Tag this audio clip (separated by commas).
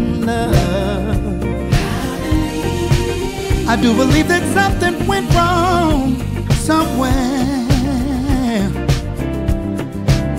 Music